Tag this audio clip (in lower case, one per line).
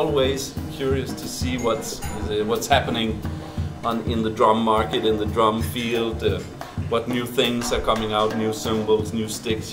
music
speech
drum
drum kit
musical instrument